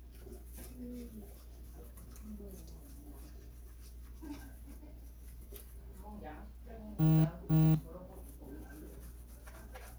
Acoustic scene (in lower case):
kitchen